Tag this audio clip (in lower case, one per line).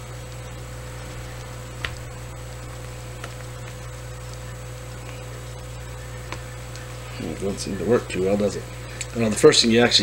speech